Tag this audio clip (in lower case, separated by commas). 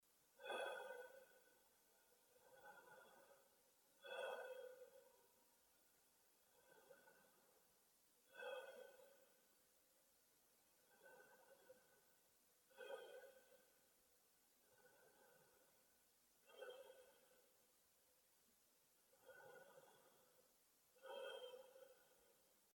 breathing, respiratory sounds